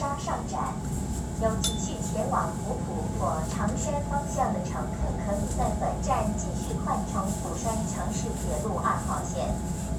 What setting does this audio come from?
subway train